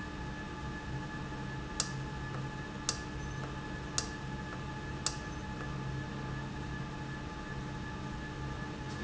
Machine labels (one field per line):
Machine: valve